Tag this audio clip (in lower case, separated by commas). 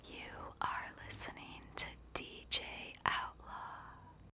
whispering, human voice